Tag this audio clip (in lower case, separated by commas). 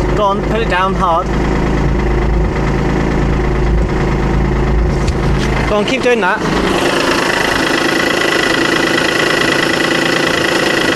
vehicle, medium engine (mid frequency), idling, speech, engine, car